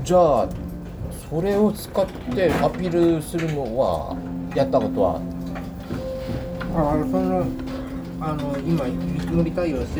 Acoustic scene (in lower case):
restaurant